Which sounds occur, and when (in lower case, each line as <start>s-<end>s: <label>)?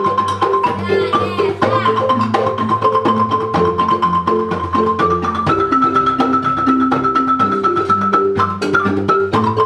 0.0s-9.6s: music
0.8s-1.5s: child speech
1.7s-1.9s: child speech